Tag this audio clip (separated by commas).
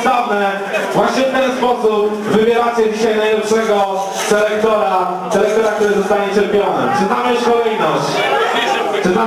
Speech